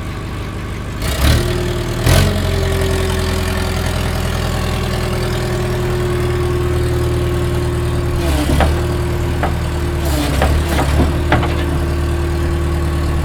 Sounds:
vroom, engine

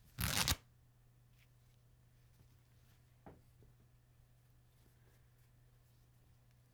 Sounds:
tearing

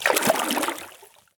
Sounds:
splash, liquid

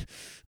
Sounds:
respiratory sounds, breathing

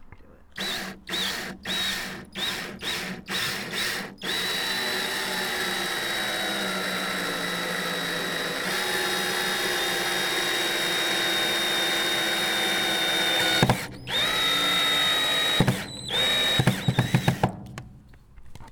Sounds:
power tool, tools, drill

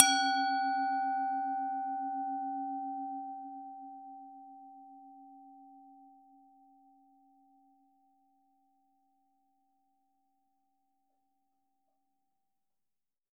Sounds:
music, musical instrument

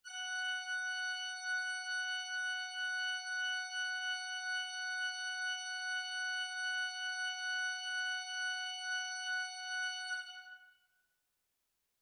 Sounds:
music, organ, keyboard (musical), musical instrument

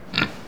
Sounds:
animal, livestock

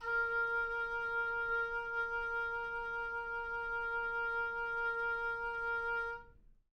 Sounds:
music, musical instrument, woodwind instrument

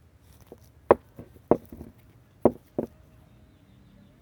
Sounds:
walk

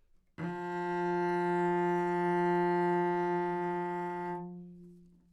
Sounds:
music, bowed string instrument, musical instrument

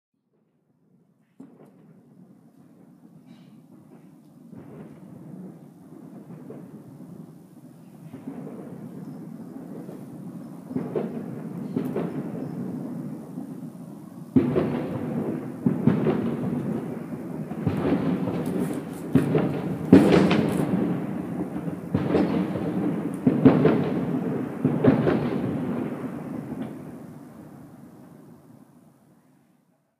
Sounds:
explosion, fireworks

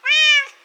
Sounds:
pets, animal, cat

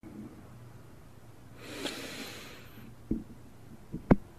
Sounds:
respiratory sounds, breathing

